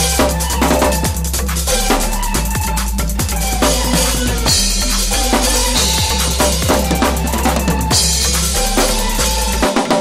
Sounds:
Drum, Cymbal, Music, Drum kit, Drum roll, Musical instrument

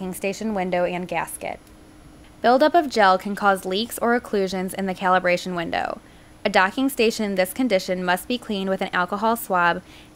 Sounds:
Speech

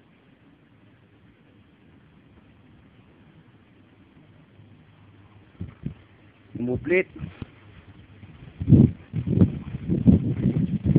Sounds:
Speech

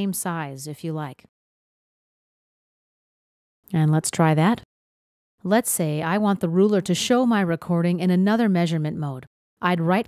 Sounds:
Speech

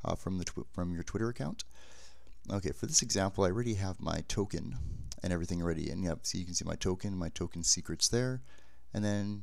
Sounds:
Speech

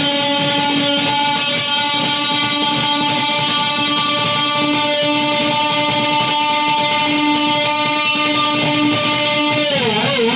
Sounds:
Plucked string instrument, Musical instrument, playing electric guitar, Music, Electric guitar, Strum

